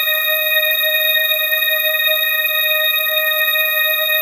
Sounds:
musical instrument
keyboard (musical)
music
organ

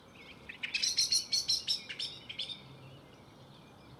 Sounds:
animal
wild animals
bird call
bird

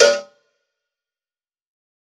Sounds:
cowbell
bell

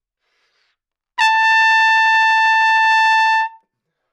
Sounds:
musical instrument
trumpet
music
brass instrument

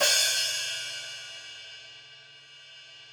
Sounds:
music
percussion
cymbal
musical instrument
hi-hat

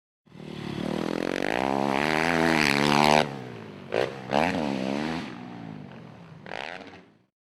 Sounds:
motor vehicle (road)
vehicle
motorcycle

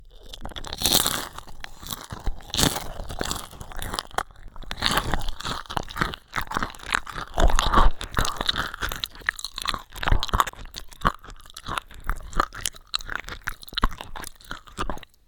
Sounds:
mastication

